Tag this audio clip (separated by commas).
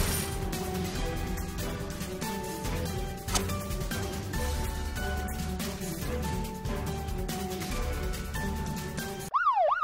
Police car (siren)